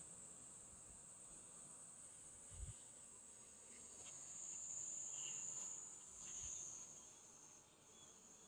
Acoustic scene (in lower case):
park